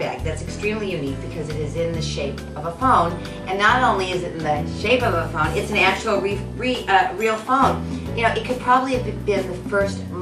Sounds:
music, speech

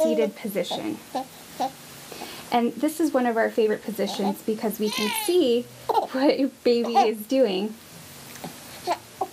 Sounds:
speech

